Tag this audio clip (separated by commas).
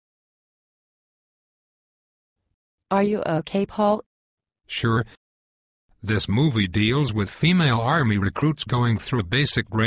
Speech synthesizer, Speech